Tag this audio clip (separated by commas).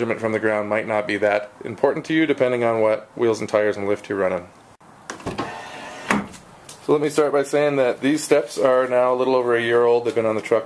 Speech